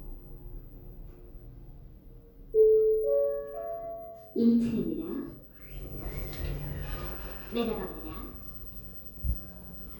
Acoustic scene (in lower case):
elevator